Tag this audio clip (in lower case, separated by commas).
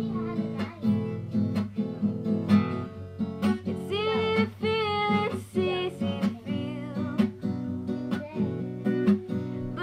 speech, music